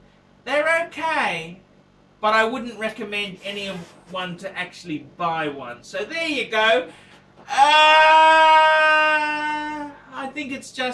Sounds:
Speech, inside a small room

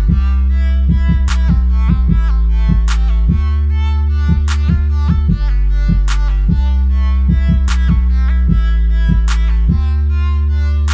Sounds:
Drum, Music, Musical instrument

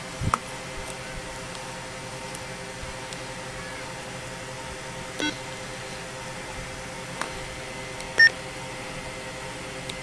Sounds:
Speech

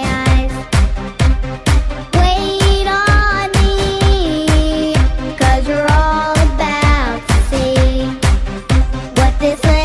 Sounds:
Music

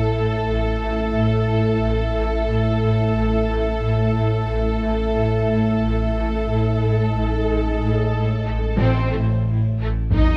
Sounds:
Music

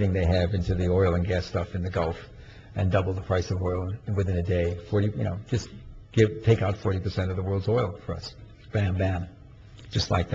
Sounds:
monologue, man speaking, Speech

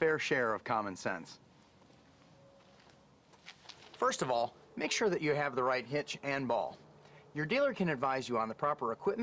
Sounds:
Speech

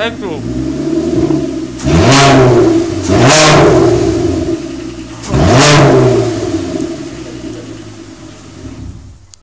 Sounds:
Speech

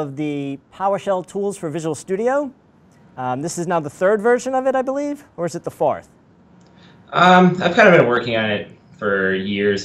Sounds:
Speech

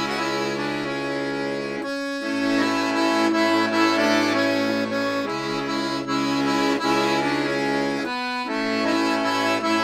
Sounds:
Music, playing accordion, Accordion

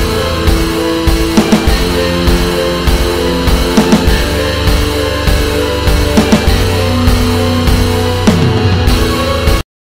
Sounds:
Music

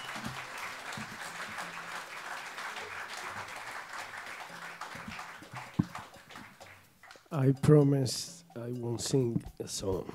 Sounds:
Speech

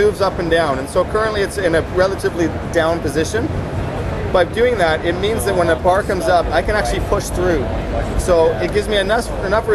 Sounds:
Speech

